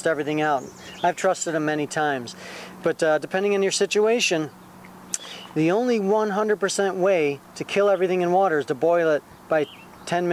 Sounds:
speech

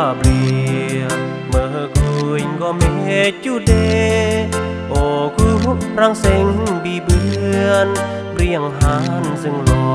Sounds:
music

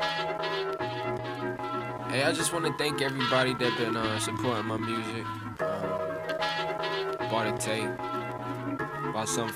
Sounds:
speech
music

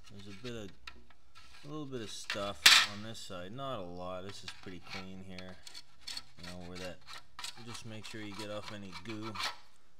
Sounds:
inside a small room
speech

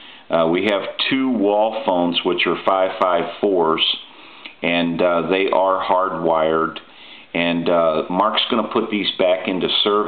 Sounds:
speech

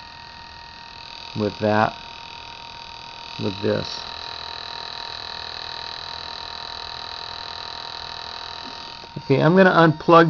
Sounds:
speech

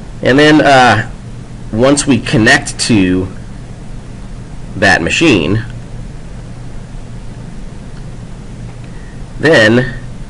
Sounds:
white noise
speech

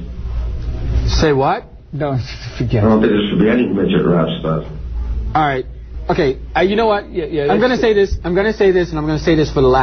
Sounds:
speech

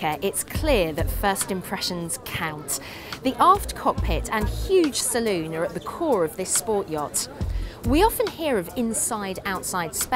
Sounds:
music
speech

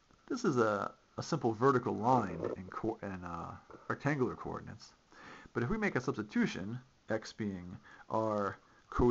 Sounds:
speech

